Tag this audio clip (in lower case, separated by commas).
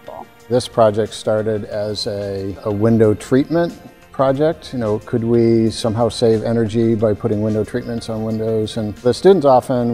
music, speech